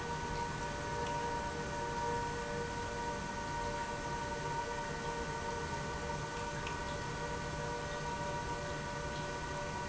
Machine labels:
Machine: pump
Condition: normal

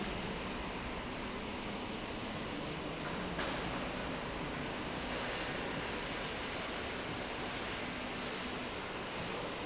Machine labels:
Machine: slide rail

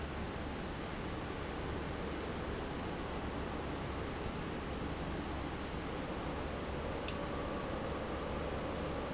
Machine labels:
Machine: fan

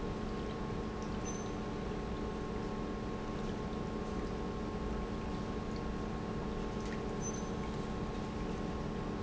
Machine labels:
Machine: pump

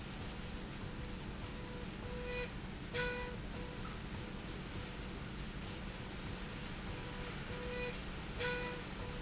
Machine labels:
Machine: slide rail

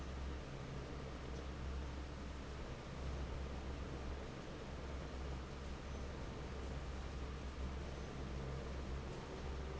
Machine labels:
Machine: fan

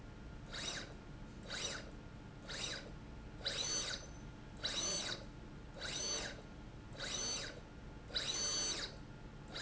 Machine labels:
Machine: slide rail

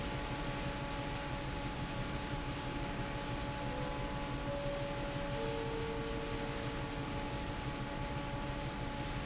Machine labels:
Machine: fan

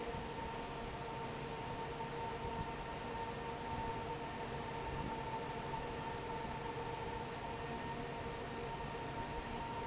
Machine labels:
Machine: fan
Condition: normal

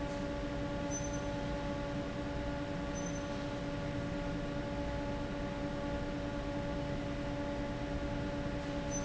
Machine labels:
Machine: fan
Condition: abnormal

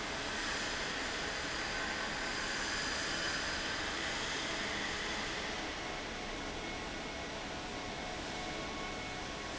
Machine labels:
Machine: fan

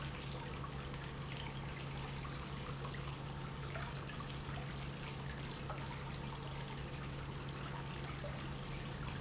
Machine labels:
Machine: pump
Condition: normal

